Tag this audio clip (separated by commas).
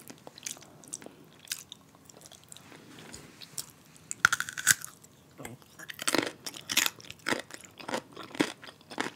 people eating